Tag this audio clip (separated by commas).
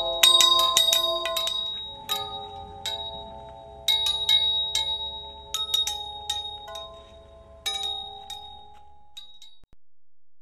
Tubular bells